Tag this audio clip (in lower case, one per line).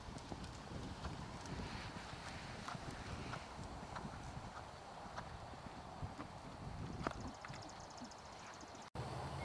horse
clip-clop
animal